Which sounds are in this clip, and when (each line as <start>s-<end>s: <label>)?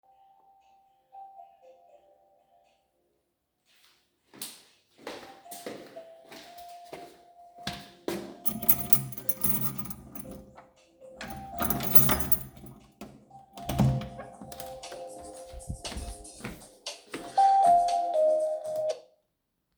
0.0s-19.7s: phone ringing
4.1s-8.3s: footsteps
8.4s-10.4s: keys
11.1s-12.8s: keys
13.4s-14.5s: door
15.8s-17.9s: footsteps